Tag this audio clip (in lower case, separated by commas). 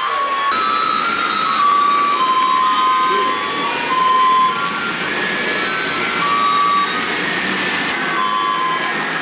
music, speech